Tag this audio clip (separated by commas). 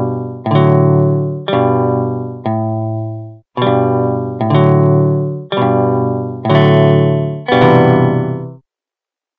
Music, Musical instrument, Strum, Acoustic guitar, Guitar, Plucked string instrument